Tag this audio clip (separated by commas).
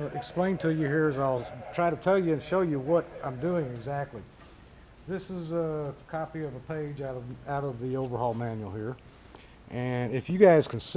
Speech